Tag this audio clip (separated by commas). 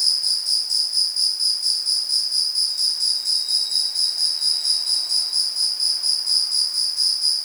Animal, Insect, Wild animals, Cricket